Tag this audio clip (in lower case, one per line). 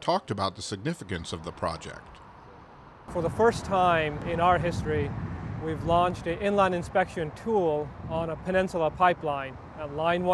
speech